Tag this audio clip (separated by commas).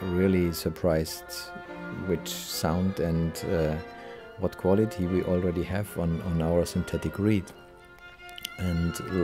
Speech, Music